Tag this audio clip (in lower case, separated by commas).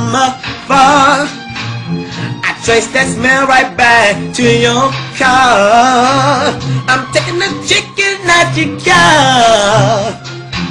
music